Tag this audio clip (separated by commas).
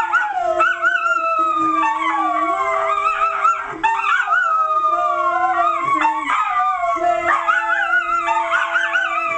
Animal, Dog, Domestic animals, canids, Yip, Singing